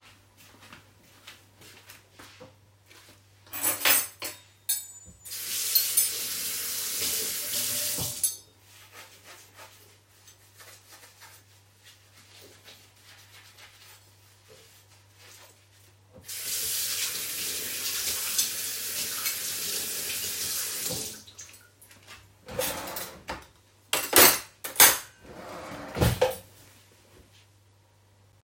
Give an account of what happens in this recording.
I walked to the sink and turned on the sink faucet to wash the dishes. The sound of running water overlaps polyphonically with the clanking of plates and silverware and then i put the dishes in the wardrobe and then closed it.